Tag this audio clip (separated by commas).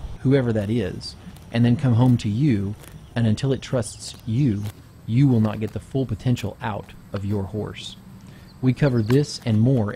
Speech